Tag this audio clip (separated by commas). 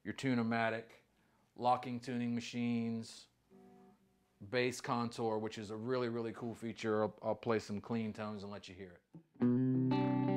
Music, Speech